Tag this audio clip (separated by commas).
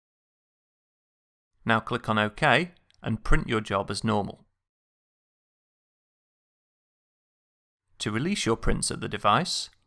Speech